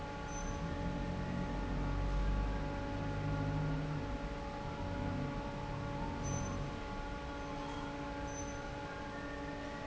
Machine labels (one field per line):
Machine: fan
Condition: normal